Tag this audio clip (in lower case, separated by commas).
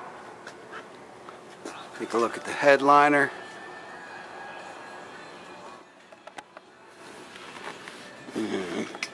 music, speech, inside a public space